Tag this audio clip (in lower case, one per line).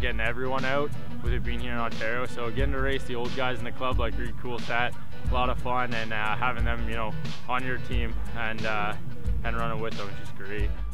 outside, urban or man-made
music
speech